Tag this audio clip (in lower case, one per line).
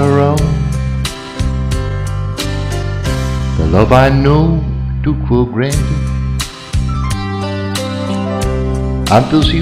music
speech